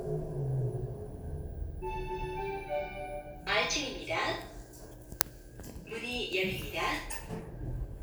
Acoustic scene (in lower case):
elevator